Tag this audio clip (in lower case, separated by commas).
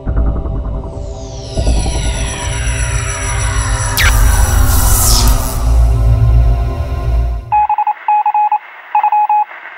radio